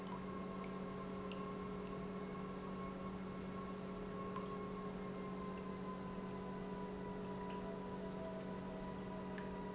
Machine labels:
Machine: pump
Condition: normal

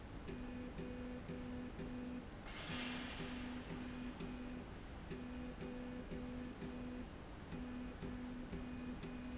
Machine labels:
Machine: slide rail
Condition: normal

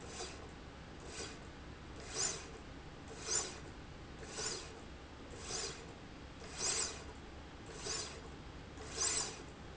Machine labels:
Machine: slide rail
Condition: normal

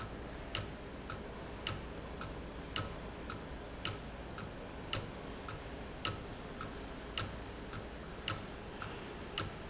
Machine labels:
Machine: valve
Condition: abnormal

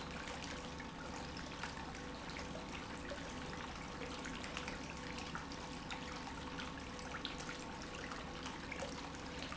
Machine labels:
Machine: pump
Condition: normal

